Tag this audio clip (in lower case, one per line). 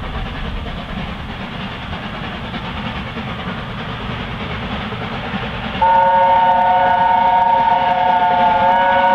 steam whistle